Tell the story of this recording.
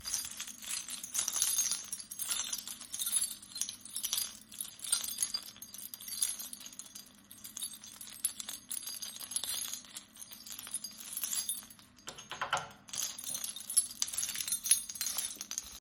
Took my keys out of my pocket. My keychain made noise as I looked for the right key before I opened the door to my house